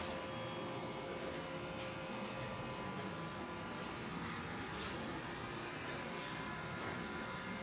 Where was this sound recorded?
in a residential area